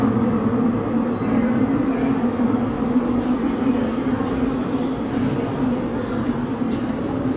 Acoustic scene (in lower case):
subway station